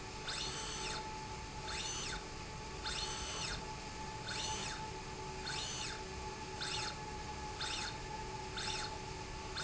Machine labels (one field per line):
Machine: slide rail